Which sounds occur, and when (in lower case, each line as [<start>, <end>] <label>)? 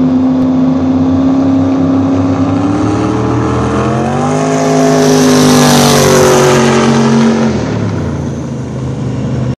[0.00, 9.54] speedboat